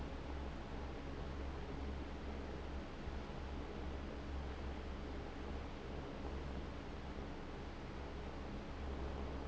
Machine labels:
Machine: fan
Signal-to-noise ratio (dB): 6 dB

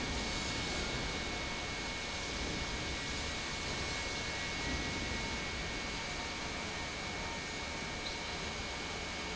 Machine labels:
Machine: pump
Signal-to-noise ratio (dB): -6 dB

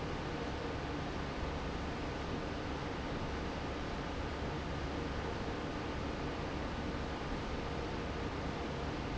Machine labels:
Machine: fan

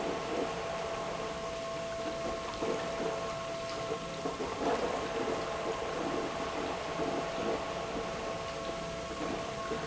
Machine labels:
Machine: pump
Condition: abnormal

